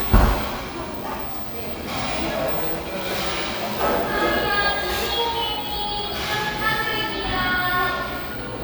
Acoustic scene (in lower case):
cafe